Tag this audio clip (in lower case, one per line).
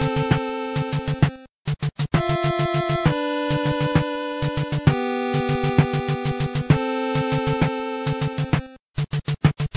music